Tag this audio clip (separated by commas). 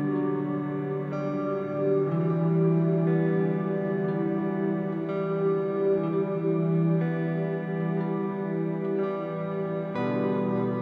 Music